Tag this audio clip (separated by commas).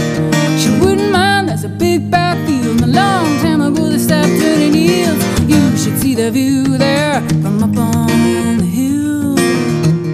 Country, Music